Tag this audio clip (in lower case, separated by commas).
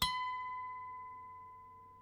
harp, music, musical instrument